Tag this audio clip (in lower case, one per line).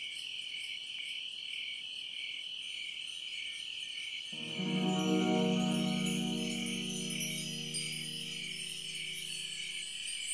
insect
cricket